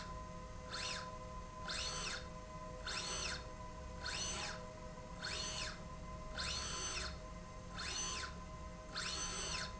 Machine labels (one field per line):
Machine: slide rail